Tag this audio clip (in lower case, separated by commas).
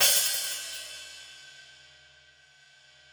musical instrument, music, cymbal, hi-hat, percussion